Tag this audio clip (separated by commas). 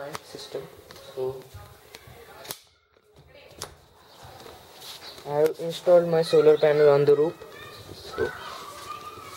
Speech, inside a small room